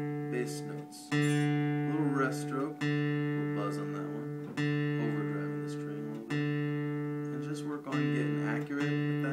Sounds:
music
speech

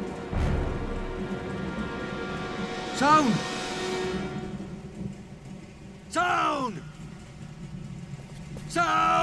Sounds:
speech

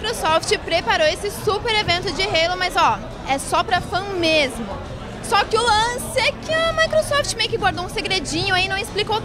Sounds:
speech
inside a public space

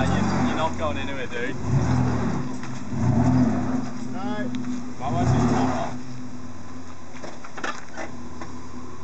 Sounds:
car
speech
vehicle

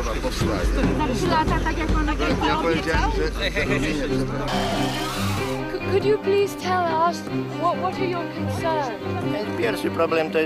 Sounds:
speech
music

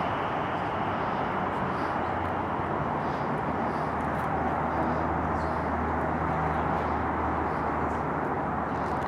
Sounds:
outside, urban or man-made

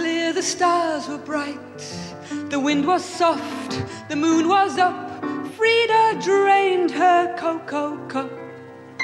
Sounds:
music

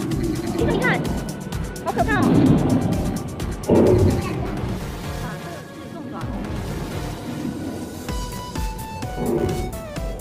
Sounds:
dinosaurs bellowing

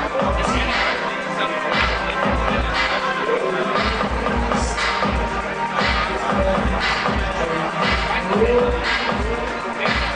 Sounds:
music

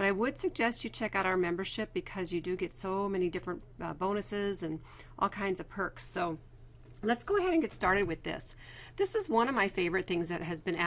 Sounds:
speech

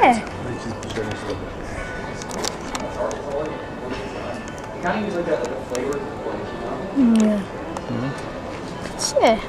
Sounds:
speech
bell

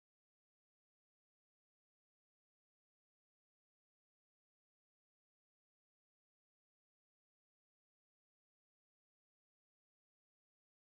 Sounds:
silence

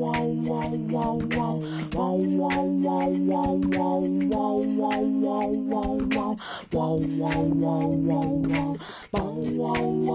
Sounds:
music

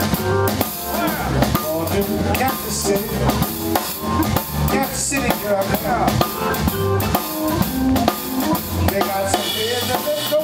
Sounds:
music

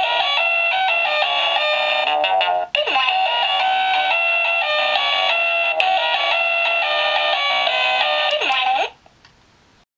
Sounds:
speech
music

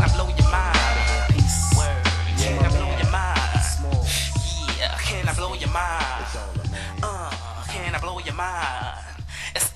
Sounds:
electronic music
music
rapping

